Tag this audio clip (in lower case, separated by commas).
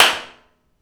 clapping, hands